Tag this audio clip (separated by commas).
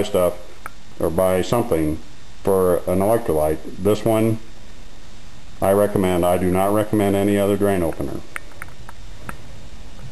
Speech, inside a small room